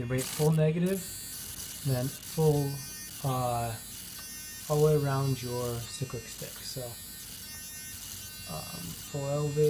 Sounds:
Mains hum, Hum

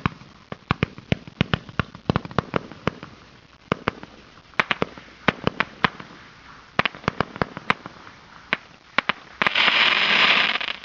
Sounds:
fireworks banging, Fireworks

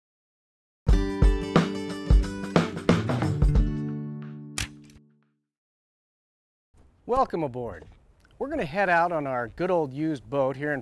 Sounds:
Speech, Music

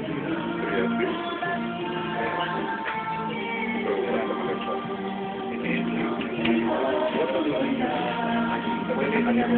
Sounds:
Music

